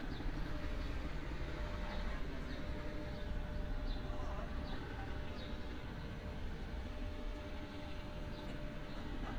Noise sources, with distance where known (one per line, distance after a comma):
person or small group talking, far